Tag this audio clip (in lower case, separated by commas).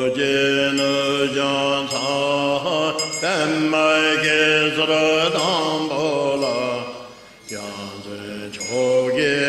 music, vocal music, mantra